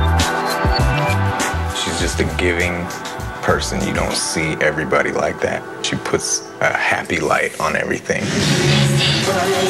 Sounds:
speech
music

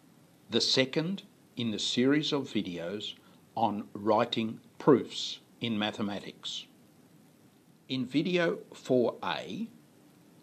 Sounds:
speech

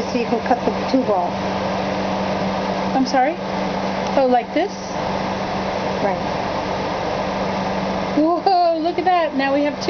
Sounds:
speech

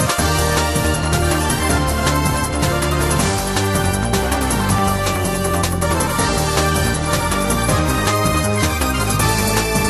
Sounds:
music

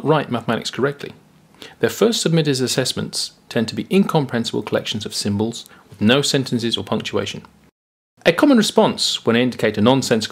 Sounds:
speech

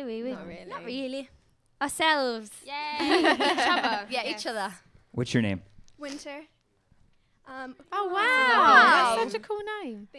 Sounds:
speech

